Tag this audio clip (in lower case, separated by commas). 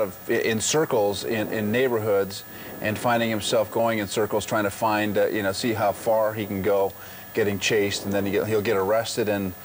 speech